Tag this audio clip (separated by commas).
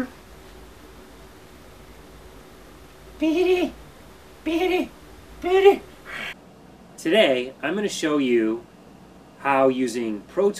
Speech